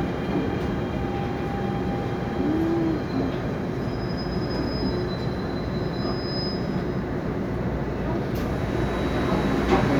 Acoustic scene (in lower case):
subway train